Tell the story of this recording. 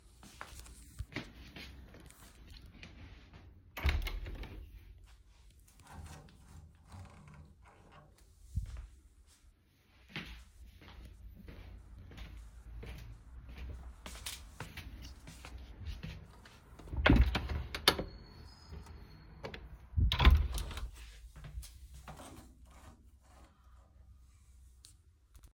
I went to one window, closed it and turned up the radiator. Then i went to the second window, closed it and also turned up the radiator.